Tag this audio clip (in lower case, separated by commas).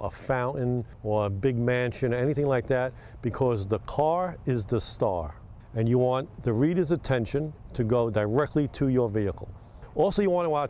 speech